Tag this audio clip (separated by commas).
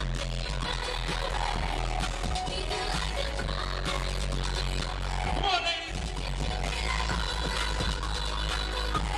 Music, Speech